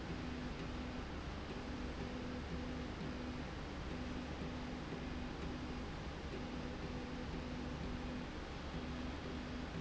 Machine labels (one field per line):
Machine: slide rail